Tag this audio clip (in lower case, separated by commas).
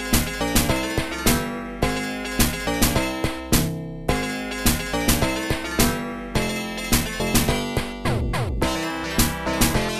music, theme music